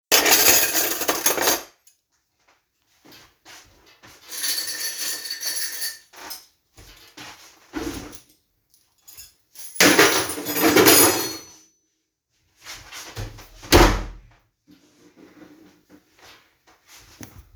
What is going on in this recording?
I grab the cuttlery for my packed lunch and my keys, suddenly hit the kitchen table, both cuttlery and keys fall to the ground, out of anger, I slam the door.